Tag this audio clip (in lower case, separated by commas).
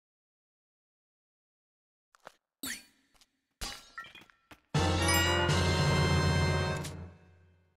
music, sound effect